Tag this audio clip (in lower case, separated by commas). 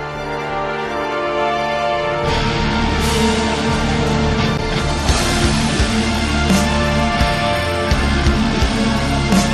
music